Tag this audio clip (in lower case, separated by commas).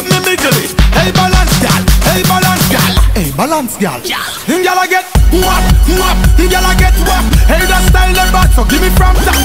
music